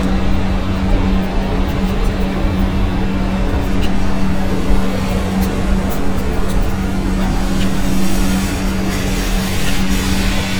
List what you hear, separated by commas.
large-sounding engine